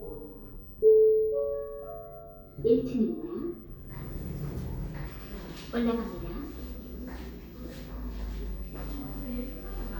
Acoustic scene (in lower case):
elevator